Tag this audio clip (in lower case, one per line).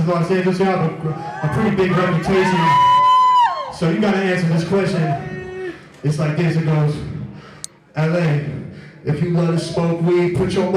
speech